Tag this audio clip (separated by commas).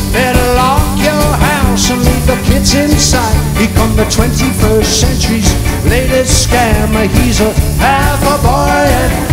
Singing, Music